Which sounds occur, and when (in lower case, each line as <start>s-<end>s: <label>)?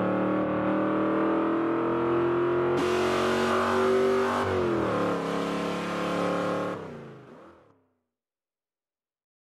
0.0s-8.2s: car